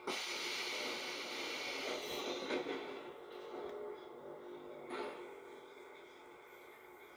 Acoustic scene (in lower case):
subway train